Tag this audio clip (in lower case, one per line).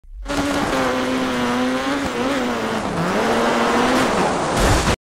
vehicle